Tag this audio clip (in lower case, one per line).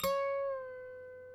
music
harp
musical instrument